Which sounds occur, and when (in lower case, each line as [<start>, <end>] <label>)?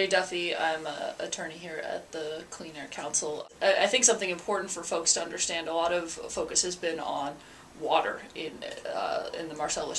[0.00, 7.31] female speech
[0.00, 9.95] background noise
[7.32, 7.78] breathing
[7.72, 9.95] female speech